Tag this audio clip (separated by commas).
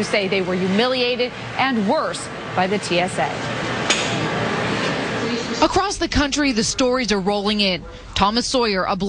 Speech